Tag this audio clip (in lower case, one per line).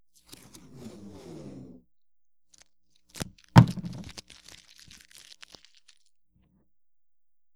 domestic sounds
packing tape